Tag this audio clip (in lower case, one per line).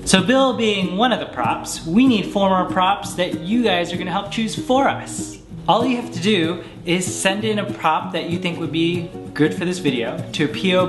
speech
music